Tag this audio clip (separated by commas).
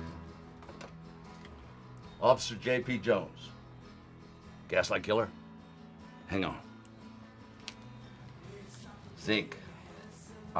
Speech, Music